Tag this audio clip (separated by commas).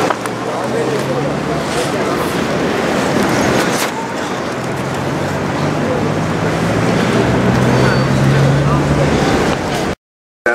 Car, Run, Vehicle, Car passing by, Speech